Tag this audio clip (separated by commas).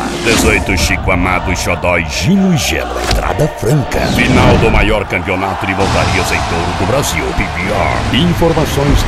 Speech, Music, Background music